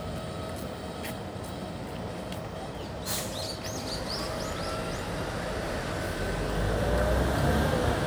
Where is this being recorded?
in a residential area